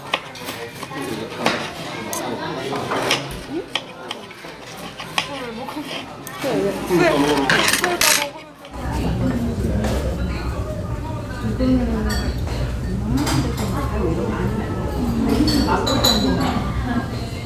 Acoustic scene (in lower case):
restaurant